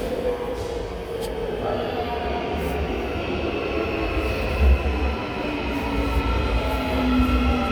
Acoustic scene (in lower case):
subway station